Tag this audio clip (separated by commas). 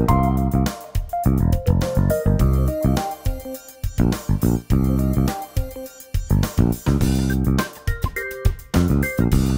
Music